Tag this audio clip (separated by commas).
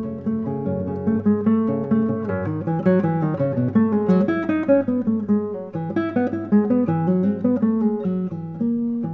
Guitar, Plucked string instrument, Music, Musical instrument, Acoustic guitar